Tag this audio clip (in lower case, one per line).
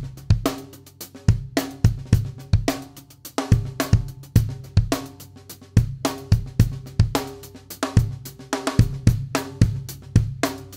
playing snare drum